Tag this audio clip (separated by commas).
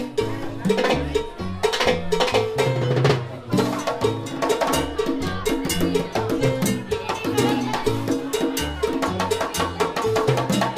Percussion, Speech, Music